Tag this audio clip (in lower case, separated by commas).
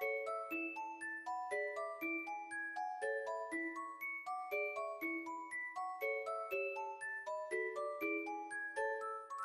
music